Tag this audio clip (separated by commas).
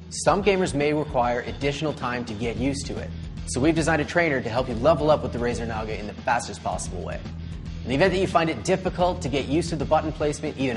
Music, Speech